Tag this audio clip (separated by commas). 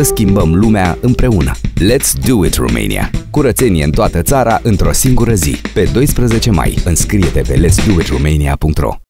Music, Speech